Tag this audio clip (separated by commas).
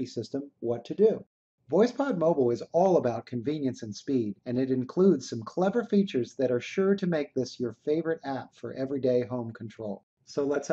man speaking, Speech